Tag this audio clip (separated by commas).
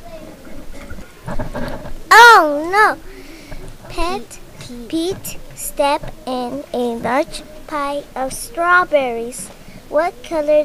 Speech